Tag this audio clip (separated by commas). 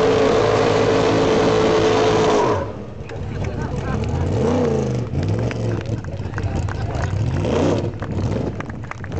Car, Vehicle